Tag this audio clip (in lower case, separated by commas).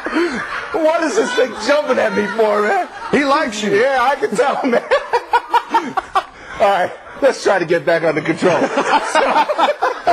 speech